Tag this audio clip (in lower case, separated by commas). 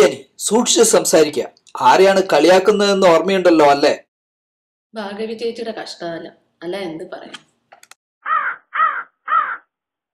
speech, outside, rural or natural